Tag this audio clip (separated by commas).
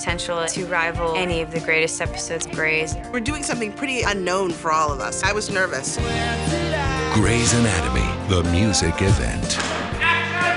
Tender music, Speech, Music